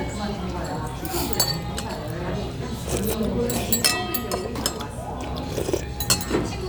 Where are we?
in a restaurant